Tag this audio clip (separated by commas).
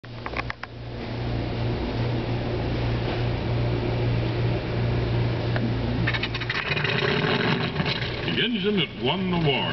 Engine, Speech